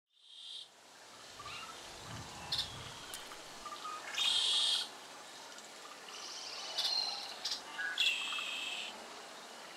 Water gently flowing, birds chirps and trills in a natural setting.